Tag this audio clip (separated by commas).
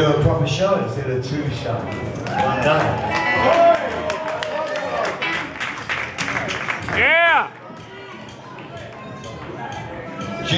Music, Speech